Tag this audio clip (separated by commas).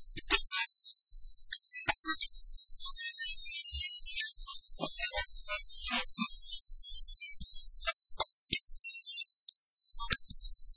Music